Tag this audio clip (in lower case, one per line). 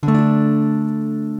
acoustic guitar
music
strum
musical instrument
guitar
plucked string instrument